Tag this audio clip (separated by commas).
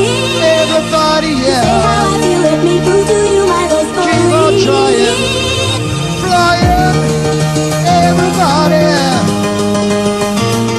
Music, Electronic music, Techno